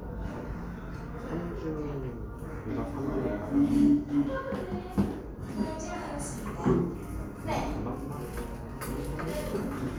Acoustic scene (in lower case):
restaurant